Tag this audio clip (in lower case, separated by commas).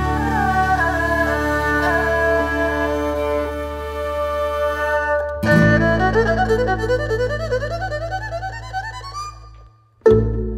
playing erhu